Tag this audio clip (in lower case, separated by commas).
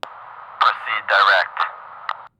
male speech, human voice, speech